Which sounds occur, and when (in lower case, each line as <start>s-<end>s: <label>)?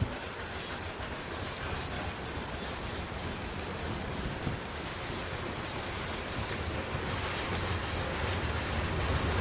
0.0s-3.4s: clickety-clack
0.0s-9.4s: train
0.0s-9.4s: wind
7.0s-9.4s: clickety-clack